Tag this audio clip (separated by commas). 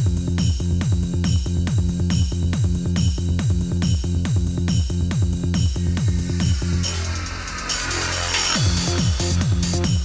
Music